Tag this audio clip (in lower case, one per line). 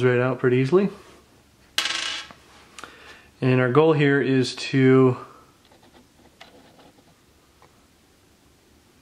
speech
inside a small room